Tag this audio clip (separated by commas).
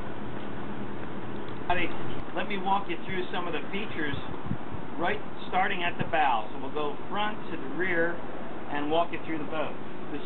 Speech